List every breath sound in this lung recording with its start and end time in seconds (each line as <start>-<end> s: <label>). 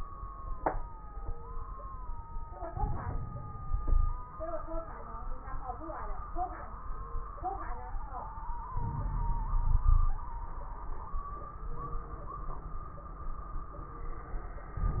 2.66-4.28 s: inhalation
2.66-4.28 s: crackles
3.78-4.28 s: wheeze
8.71-10.18 s: inhalation
9.53-10.18 s: wheeze